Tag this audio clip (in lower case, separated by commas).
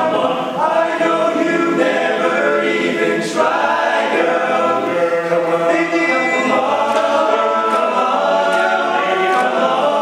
a capella, music